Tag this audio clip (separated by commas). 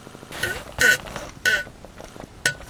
Fart